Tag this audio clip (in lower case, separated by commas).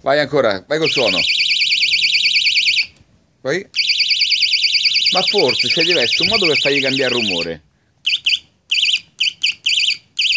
speech